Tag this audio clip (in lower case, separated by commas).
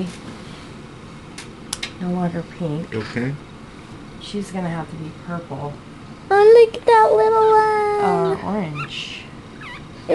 domestic animals, animal, dog